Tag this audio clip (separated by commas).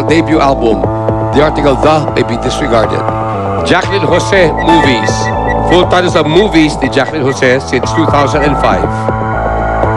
Speech, inside a large room or hall, Music